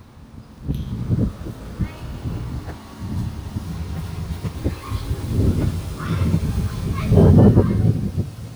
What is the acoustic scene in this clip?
residential area